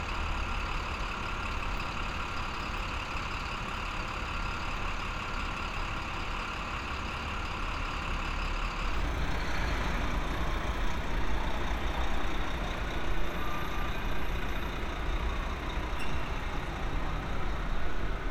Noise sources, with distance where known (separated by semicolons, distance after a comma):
large-sounding engine